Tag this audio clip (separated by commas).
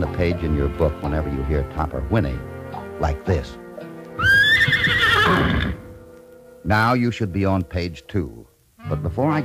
Music, Speech